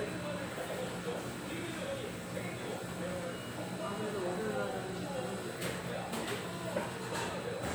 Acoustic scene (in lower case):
restaurant